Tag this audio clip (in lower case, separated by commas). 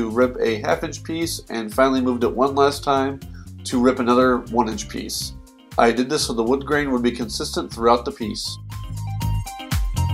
music, speech